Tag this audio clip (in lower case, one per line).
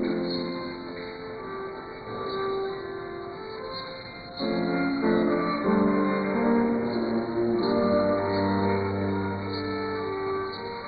music
cello
musical instrument
violin